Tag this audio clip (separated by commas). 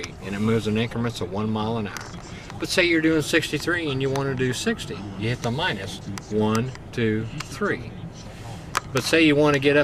Tap, Speech